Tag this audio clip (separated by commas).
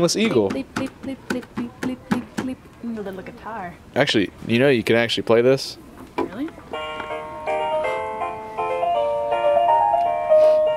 inside a public space, Speech, Music